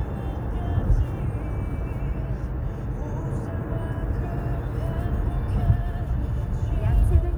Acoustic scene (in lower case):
car